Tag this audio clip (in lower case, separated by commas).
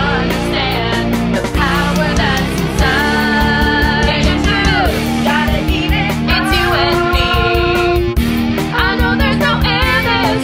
music